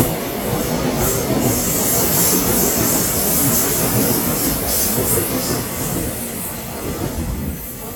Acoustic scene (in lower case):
subway station